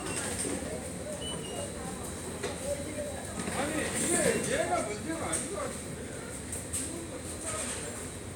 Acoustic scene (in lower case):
subway station